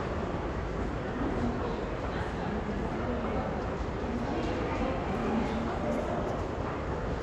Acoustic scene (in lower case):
crowded indoor space